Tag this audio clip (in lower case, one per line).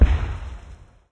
explosion
boom